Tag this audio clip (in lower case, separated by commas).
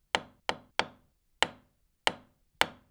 tools, hammer